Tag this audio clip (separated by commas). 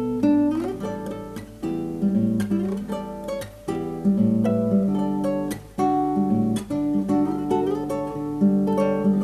Acoustic guitar, Music, Plucked string instrument, Strum, Guitar, Musical instrument